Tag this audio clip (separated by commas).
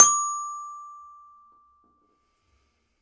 Musical instrument, Music, Glockenspiel, Mallet percussion, Percussion